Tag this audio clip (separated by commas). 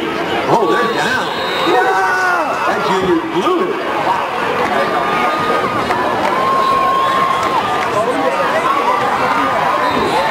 Speech